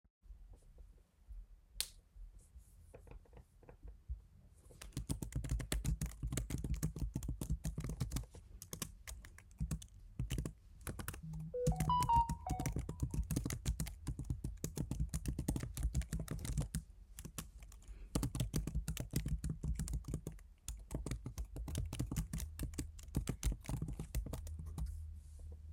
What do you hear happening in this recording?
I switched on the light, started typing, I got a text message but kept typing.